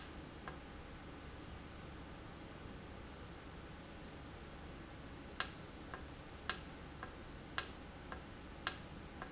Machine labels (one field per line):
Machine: valve